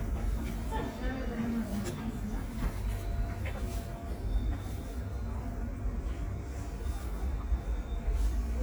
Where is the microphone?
in a subway station